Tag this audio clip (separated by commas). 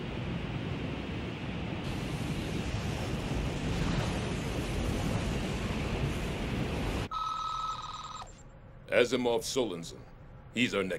Speech